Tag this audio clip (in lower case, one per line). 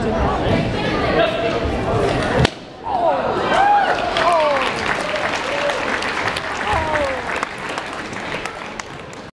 speech